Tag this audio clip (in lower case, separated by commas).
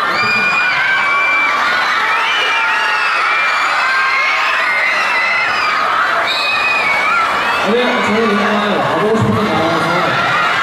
speech